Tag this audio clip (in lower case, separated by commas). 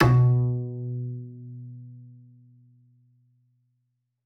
musical instrument, music, bowed string instrument